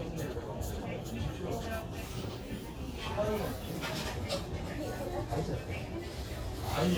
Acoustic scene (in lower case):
crowded indoor space